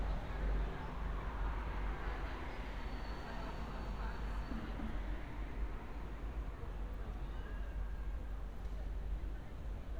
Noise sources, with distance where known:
background noise

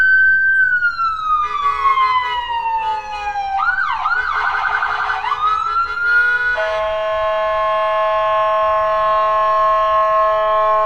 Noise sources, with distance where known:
siren, near

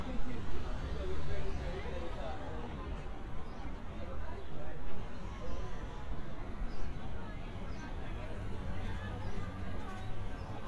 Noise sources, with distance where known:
person or small group talking

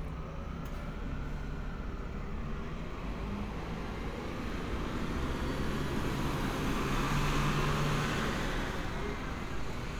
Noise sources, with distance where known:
large-sounding engine, near

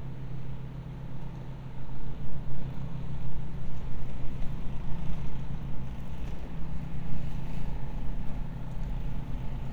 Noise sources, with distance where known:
engine of unclear size, far
unidentified impact machinery

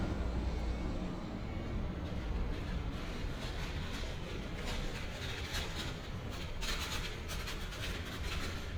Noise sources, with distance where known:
engine of unclear size, far

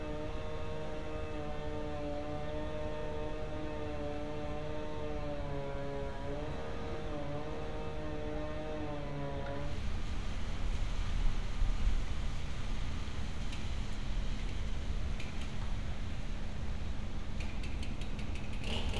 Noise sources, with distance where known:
small-sounding engine

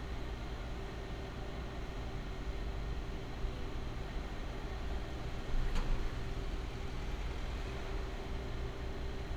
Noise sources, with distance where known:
engine of unclear size
non-machinery impact

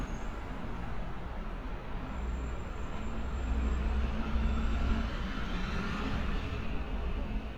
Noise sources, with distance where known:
large-sounding engine, near

